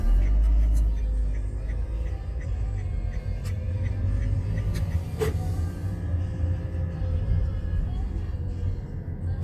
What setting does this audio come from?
car